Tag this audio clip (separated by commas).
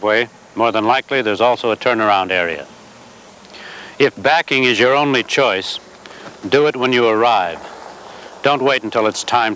Speech